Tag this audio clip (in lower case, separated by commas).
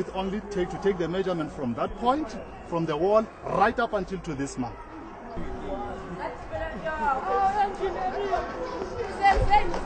outside, urban or man-made, speech, chatter